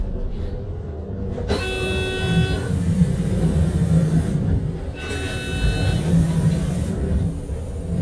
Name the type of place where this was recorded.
bus